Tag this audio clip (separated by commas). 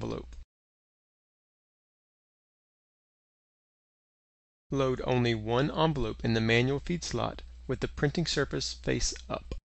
Speech